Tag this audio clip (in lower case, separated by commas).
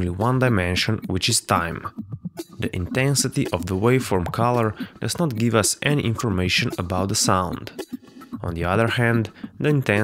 music, speech, sound effect